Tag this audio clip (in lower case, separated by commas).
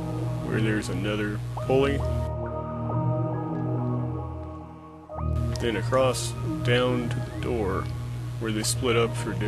music, speech